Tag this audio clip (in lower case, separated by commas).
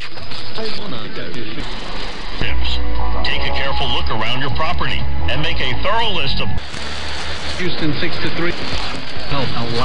radio, music, speech